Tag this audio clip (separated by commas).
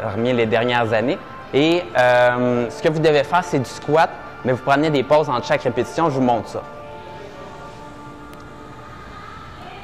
Speech, Music